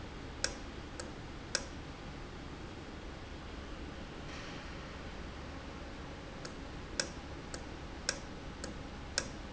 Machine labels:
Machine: valve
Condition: normal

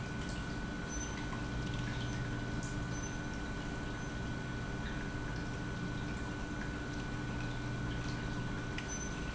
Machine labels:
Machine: pump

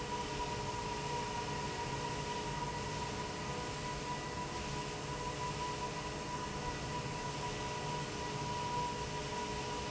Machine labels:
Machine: fan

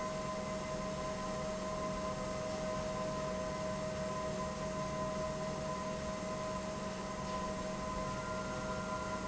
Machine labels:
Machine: pump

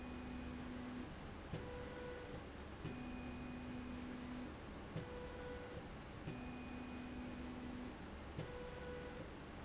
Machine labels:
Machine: slide rail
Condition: normal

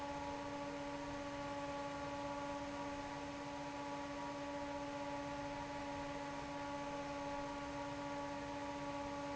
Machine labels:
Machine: fan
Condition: normal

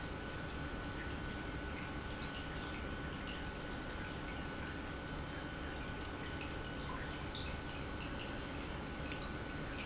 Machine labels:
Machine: pump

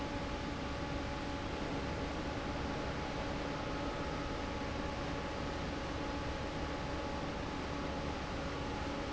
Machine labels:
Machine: fan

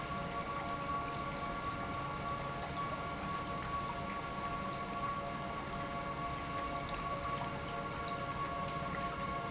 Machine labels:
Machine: pump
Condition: normal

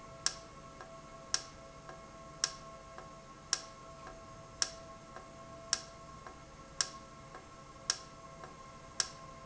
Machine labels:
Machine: valve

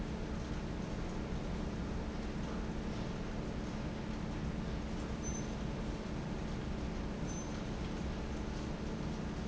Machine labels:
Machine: fan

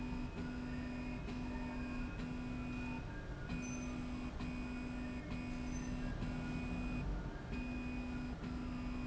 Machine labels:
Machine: slide rail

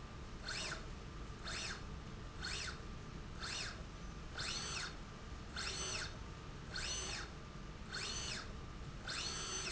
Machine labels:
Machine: slide rail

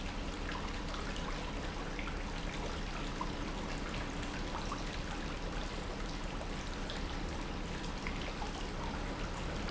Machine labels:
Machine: pump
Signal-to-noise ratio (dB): -6 dB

